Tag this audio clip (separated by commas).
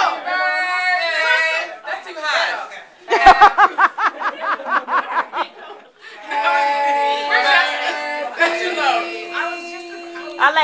Speech